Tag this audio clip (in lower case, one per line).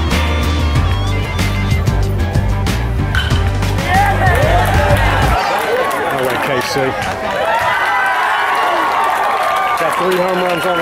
music
speech